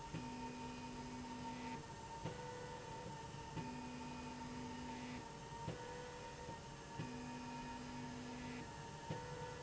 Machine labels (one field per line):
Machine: slide rail